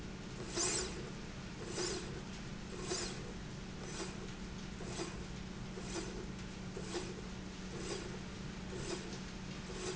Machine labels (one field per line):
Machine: slide rail